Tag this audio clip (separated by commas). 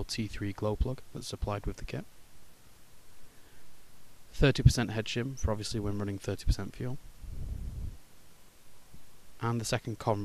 Speech